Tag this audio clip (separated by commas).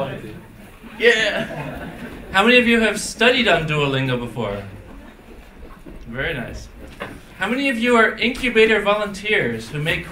Speech